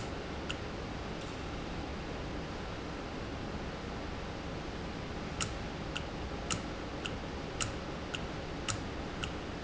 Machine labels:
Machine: valve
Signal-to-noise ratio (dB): -6 dB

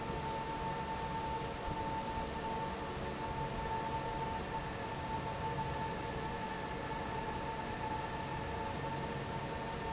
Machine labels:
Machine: fan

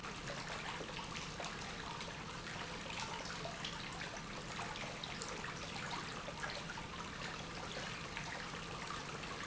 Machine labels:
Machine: pump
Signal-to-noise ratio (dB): 6 dB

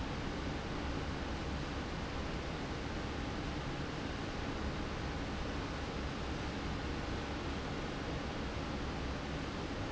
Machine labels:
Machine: fan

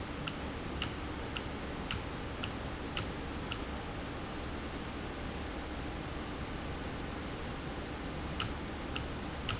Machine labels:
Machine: valve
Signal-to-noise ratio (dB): -6 dB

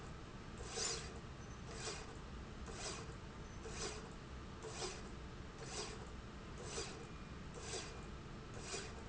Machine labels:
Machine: slide rail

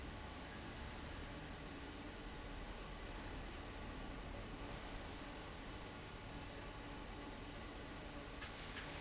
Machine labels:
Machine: fan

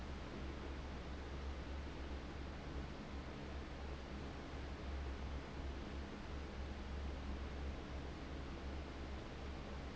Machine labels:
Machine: fan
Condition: abnormal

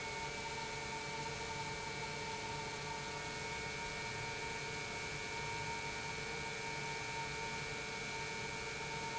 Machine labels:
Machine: pump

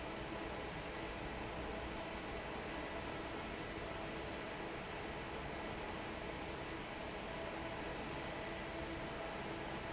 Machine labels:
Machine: fan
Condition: normal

